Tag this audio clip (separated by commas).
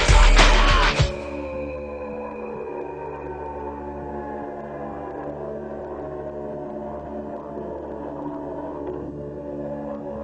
Rock music, Music